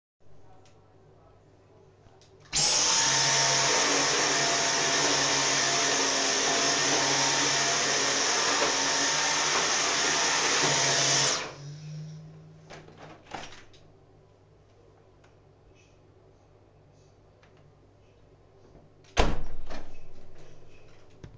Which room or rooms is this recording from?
bathroom